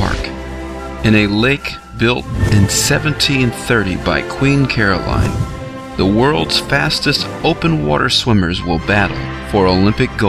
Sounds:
Speech, Music

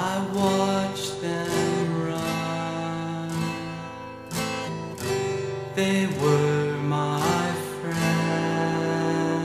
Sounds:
Music

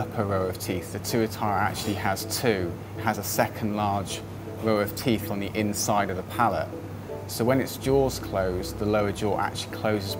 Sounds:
Music, Speech

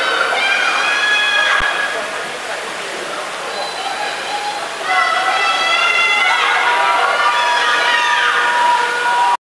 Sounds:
Speech

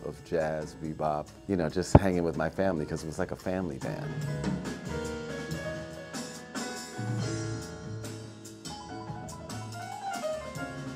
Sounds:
Speech, Music

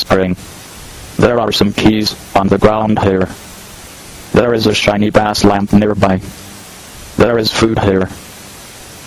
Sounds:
Speech

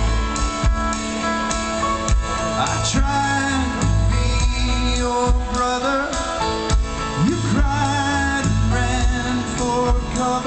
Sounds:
Music

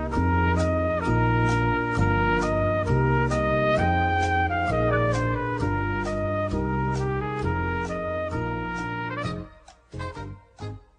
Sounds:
Music

